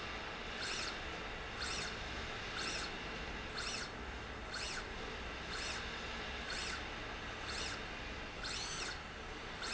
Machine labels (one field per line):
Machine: slide rail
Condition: normal